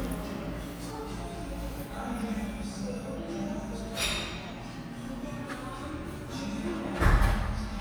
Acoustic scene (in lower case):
cafe